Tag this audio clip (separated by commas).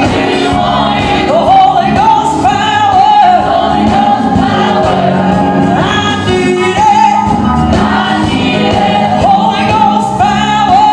Choir, Music, Male singing